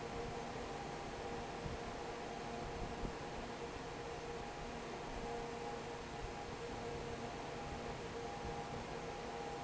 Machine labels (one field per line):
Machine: fan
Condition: normal